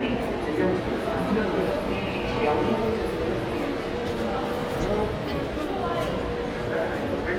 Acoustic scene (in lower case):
crowded indoor space